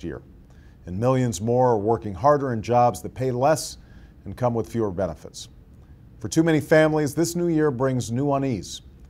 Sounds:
Speech

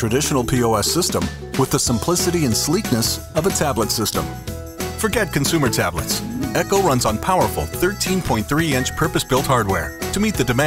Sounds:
Speech, Music

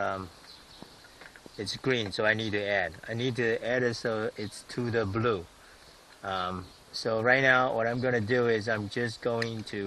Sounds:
Speech

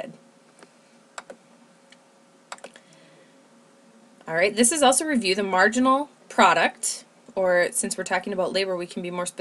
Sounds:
Computer keyboard

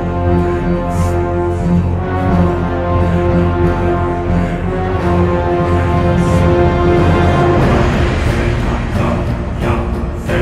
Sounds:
Background music, Music, Theme music

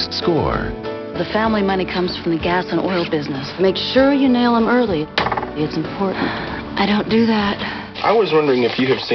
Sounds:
Music, Speech, Snort

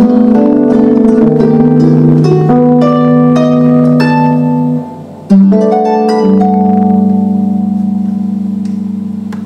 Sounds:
Bass guitar, Plucked string instrument, Musical instrument, Guitar, Music, Bowed string instrument

